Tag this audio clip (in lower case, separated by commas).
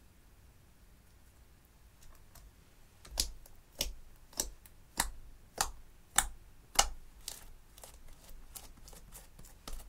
ice cracking